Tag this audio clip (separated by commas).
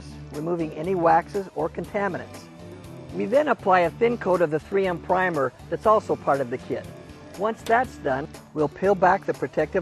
Speech, Music